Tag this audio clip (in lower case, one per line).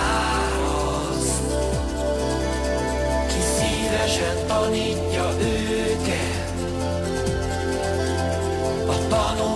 music